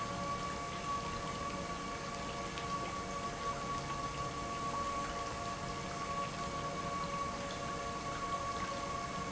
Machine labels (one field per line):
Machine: pump